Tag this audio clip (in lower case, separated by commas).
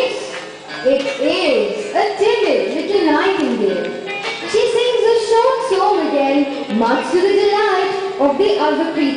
music, speech